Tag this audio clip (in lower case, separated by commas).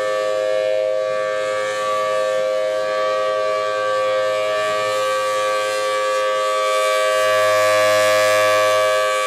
siren